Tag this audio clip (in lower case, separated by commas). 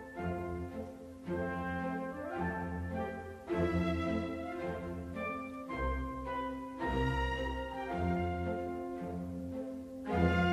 music